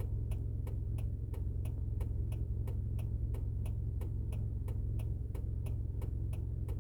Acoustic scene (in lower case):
car